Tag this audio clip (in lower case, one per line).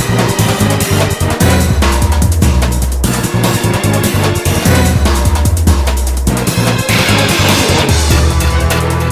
music